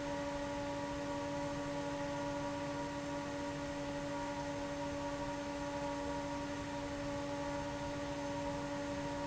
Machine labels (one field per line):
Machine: fan